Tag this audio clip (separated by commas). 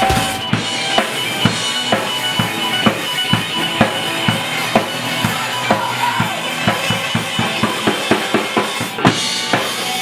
Music